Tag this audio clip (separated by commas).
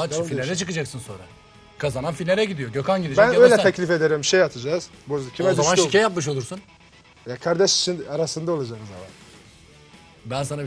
Music, Speech